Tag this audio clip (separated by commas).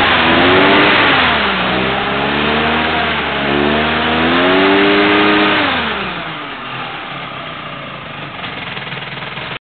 vroom, Idling, Engine